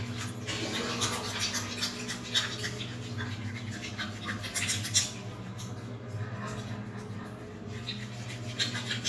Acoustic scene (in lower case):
restroom